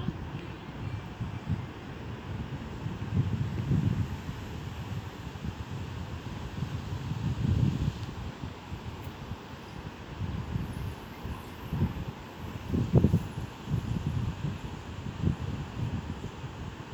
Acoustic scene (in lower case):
residential area